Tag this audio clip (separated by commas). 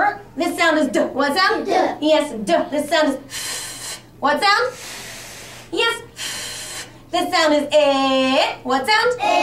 Speech